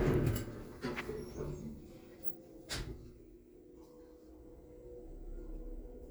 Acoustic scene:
elevator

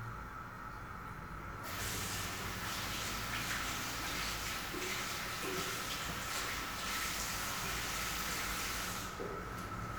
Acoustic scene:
restroom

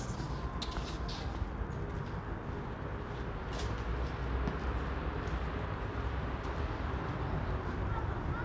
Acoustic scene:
residential area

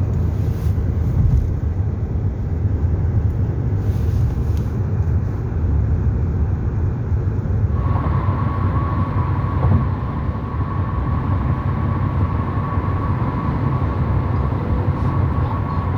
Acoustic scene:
car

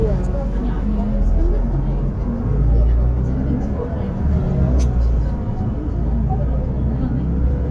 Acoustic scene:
bus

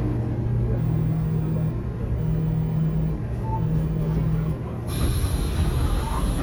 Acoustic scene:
subway train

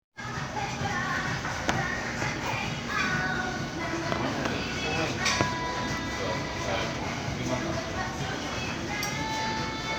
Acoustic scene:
crowded indoor space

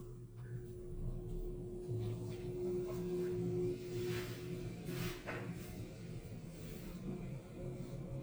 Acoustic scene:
elevator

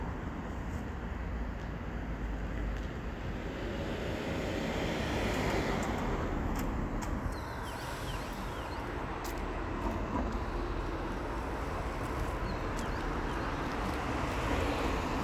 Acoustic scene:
street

